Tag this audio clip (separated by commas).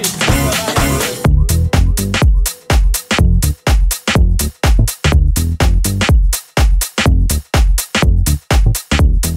Funk, Music